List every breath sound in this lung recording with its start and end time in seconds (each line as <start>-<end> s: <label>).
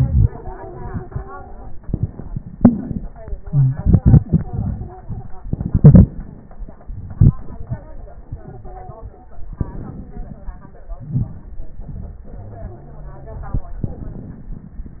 0.28-1.78 s: stridor
2.52-3.50 s: inhalation
3.44-5.34 s: exhalation
3.45-3.71 s: wheeze
4.22-5.46 s: stridor
5.42-6.78 s: inhalation
5.42-6.78 s: crackles
6.79-9.29 s: exhalation
8.27-9.39 s: stridor
9.32-10.95 s: crackles
9.33-10.96 s: inhalation
10.98-12.30 s: exhalation
10.98-12.30 s: crackles
12.26-13.77 s: inhalation
12.39-13.61 s: wheeze
13.78-15.00 s: exhalation
13.78-15.00 s: crackles